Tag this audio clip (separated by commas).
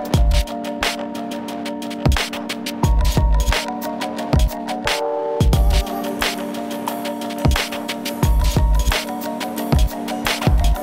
Music